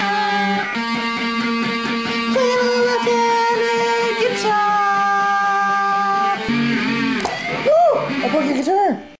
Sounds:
Guitar, Speech, Strum, Plucked string instrument, Music, Musical instrument

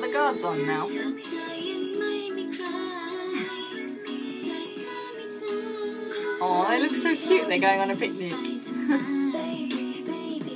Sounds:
Speech, Music, inside a small room

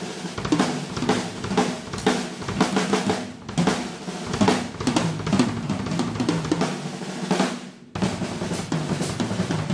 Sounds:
Bass drum, Drum machine, Drum, Musical instrument, Drum kit, Music

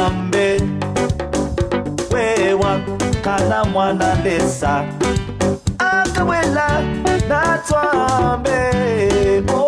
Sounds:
Music

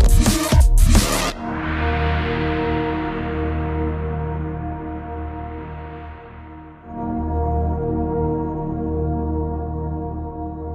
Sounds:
Music, Drum and bass, Electronic music

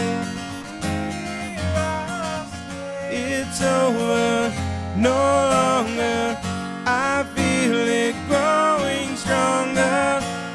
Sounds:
Acoustic guitar, Electric guitar, Guitar, Plucked string instrument, Bass guitar, Music, Musical instrument

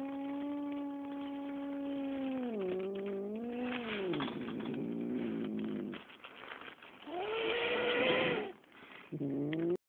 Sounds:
Animal, pets, Cat, Caterwaul

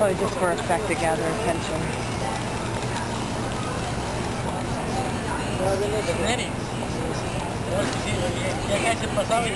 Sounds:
Speech

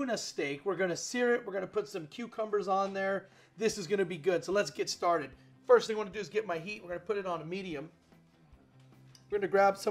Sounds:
Speech, Music

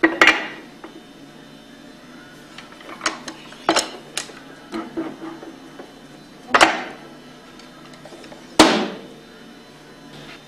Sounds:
Whack

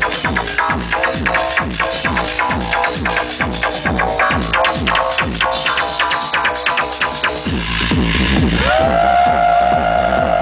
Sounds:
Music

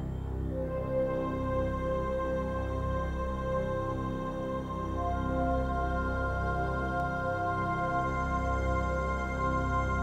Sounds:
Music

